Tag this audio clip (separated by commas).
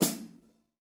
Musical instrument, Music, Snare drum, Percussion, Drum